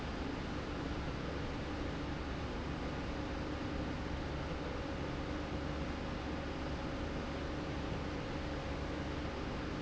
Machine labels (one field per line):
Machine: slide rail